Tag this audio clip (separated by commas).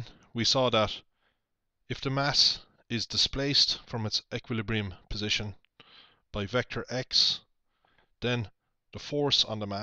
Speech